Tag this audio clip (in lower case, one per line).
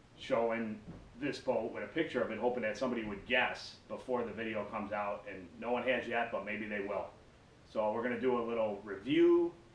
speech